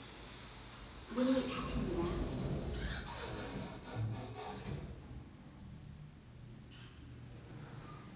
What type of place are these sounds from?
elevator